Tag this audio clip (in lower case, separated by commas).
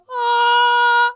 singing, human voice, female singing